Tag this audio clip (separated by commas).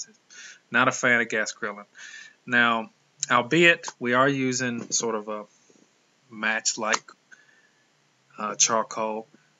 Speech